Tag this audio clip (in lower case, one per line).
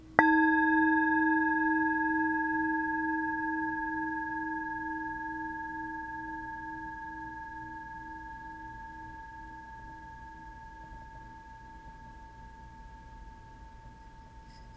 musical instrument
music